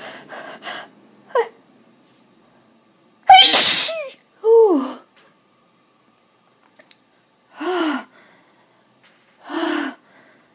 A person breathes and sneezes